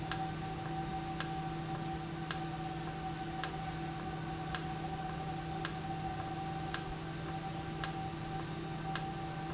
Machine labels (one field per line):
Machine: valve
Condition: normal